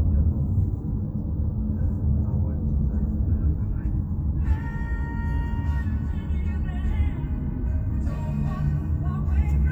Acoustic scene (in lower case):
car